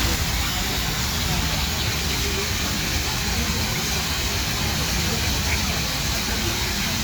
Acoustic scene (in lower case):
park